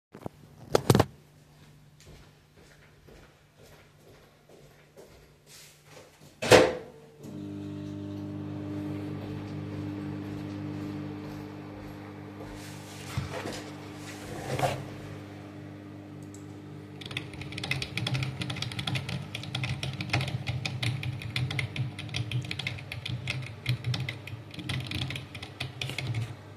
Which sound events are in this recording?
footsteps, microwave, keyboard typing